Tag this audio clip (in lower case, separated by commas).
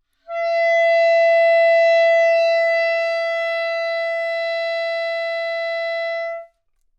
music, woodwind instrument, musical instrument